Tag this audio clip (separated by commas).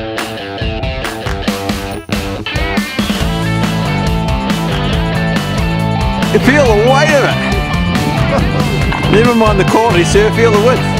Speech, Music